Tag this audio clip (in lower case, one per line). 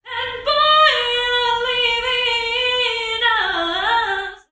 human voice